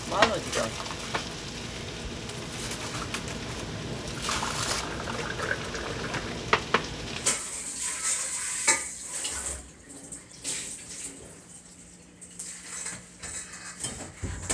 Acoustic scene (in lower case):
kitchen